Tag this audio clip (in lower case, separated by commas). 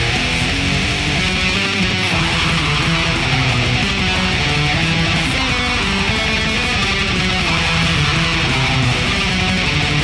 plucked string instrument, music, electric guitar, guitar, musical instrument